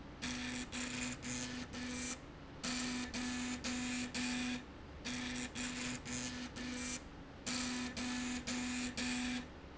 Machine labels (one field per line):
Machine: slide rail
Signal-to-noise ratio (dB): 6 dB